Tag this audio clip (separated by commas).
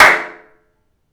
Hands, Clapping